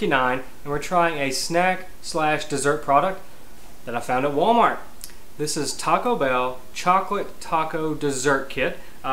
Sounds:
Speech

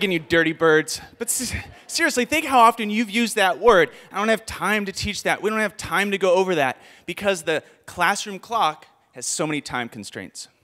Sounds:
Speech

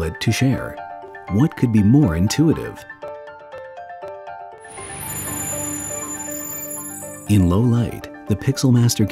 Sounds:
Speech, Music

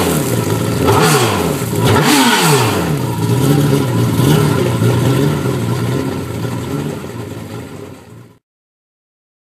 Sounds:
Sound effect

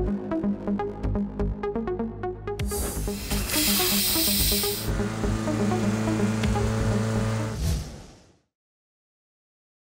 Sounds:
Music

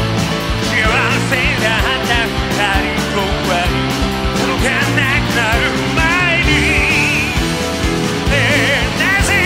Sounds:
Music

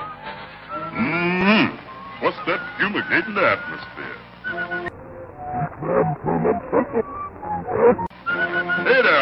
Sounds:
Music, Speech

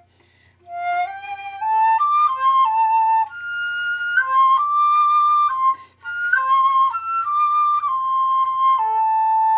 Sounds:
Folk music, Traditional music, Music, Flute

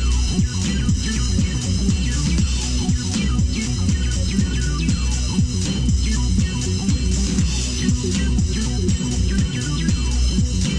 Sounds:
Music, Video game music

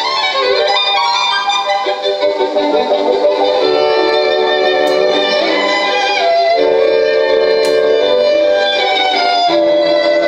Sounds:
Radio, Music

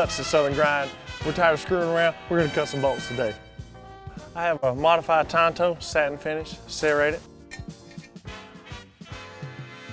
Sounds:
Music, Speech

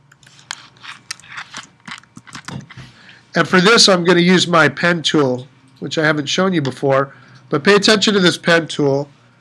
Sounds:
Speech

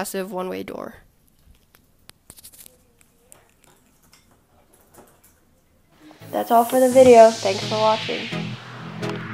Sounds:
inside a small room, Speech, Music

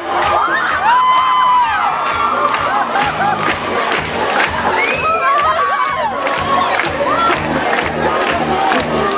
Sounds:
Music, Speech

